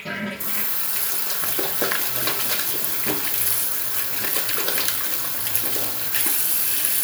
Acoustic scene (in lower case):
restroom